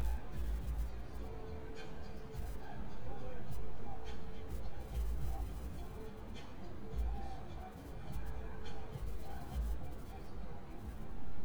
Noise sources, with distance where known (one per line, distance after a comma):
music from a fixed source